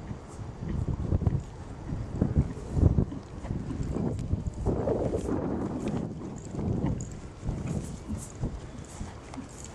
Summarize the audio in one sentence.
A horse galloping on a windy day